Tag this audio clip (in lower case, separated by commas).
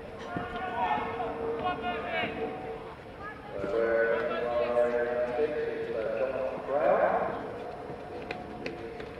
run, speech